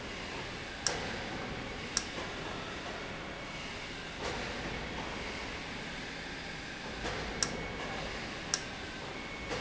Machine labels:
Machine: valve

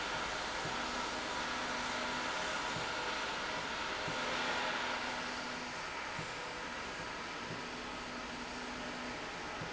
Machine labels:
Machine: slide rail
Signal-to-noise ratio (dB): -6 dB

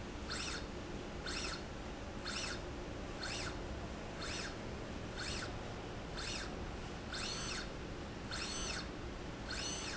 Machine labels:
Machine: slide rail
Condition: normal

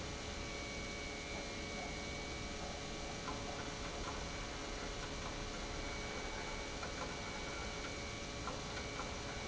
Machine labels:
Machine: pump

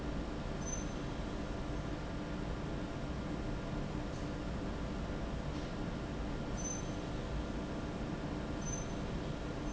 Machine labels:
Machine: fan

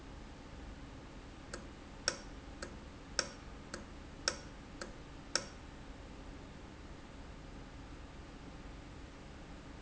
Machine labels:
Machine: valve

